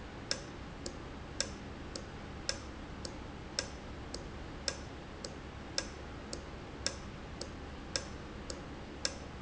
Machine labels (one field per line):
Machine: valve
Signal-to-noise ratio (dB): 0 dB